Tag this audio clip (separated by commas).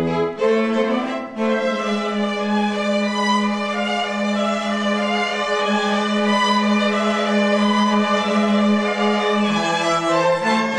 Violin, Music, Musical instrument